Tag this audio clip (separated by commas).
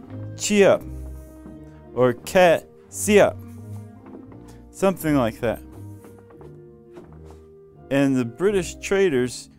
inside a large room or hall, Speech, Music